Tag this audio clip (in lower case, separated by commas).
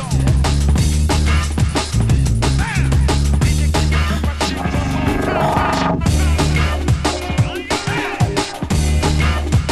music, electronic music, drum and bass